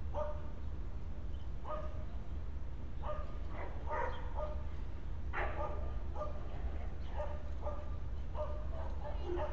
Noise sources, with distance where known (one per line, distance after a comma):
dog barking or whining, far